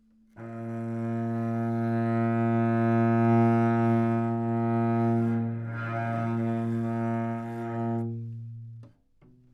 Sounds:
Musical instrument, Bowed string instrument, Music

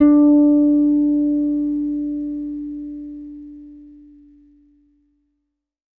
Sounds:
Music, Guitar, Plucked string instrument, Bass guitar, Musical instrument

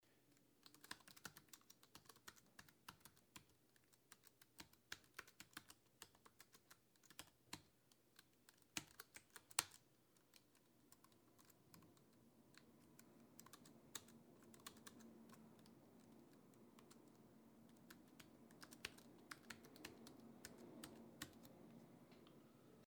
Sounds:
Typing, Computer keyboard, home sounds

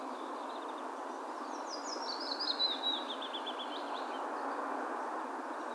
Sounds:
Bird, Animal, Wild animals

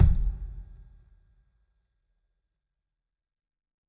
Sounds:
Musical instrument, Percussion, Bass drum, Music, Drum

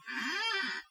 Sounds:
Squeak

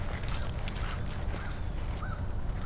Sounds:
Bird, Wild animals, Animal

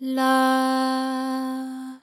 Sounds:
Female singing, Singing, Human voice

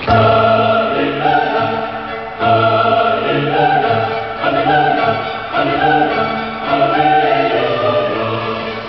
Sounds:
Human voice, Music, Singing, Musical instrument

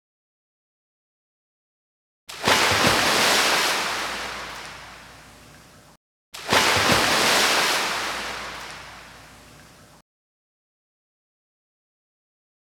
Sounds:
Water

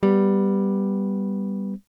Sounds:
Guitar, Music, Plucked string instrument, Musical instrument, Strum, Electric guitar

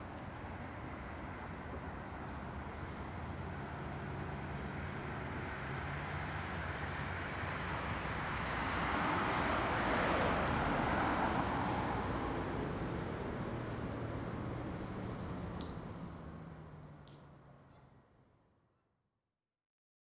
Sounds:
Vehicle, Motor vehicle (road)

